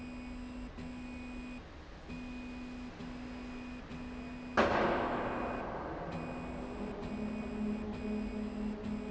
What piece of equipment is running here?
slide rail